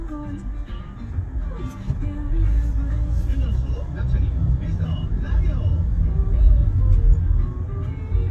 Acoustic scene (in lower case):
car